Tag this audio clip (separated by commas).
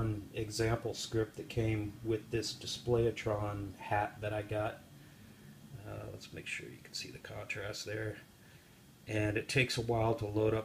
Speech